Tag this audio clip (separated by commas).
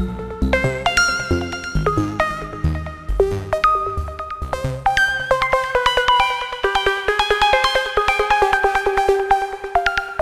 Music